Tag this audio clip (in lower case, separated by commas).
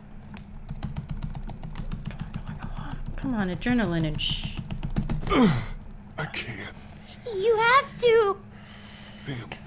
computer keyboard, typing